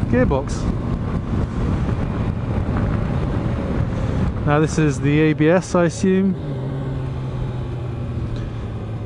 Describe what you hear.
A man speaks as a motorcycle revs and wind passes